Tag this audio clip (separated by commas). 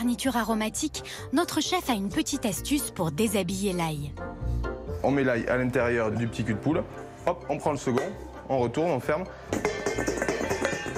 chopping food